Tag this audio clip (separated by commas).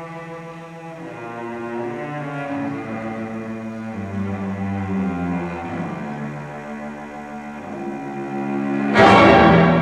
Cello, Music, Musical instrument